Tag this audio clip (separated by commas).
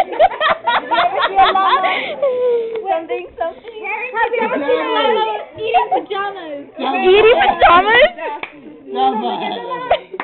Clapping